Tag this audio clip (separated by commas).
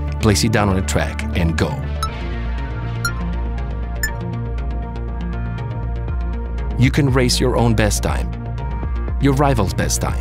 Music, Speech